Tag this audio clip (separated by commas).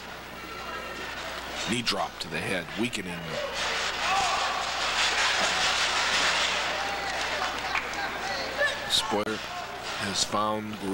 Speech